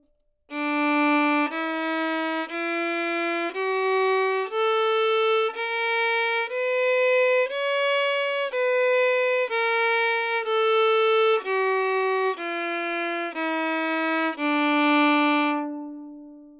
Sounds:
Musical instrument, Music, Bowed string instrument

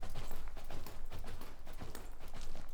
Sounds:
livestock, Animal

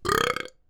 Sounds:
eructation

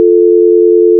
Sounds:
Telephone, Alarm

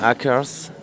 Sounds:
Human voice, Speech

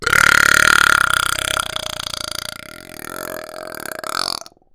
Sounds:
eructation

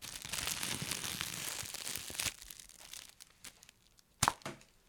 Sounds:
Crumpling

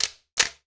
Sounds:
Camera, Mechanisms

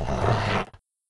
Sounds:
Animal, Domestic animals, Dog, Growling

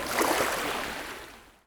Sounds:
Water, Ocean

